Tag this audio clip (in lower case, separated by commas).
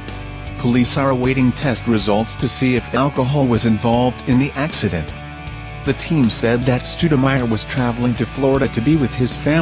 speech, music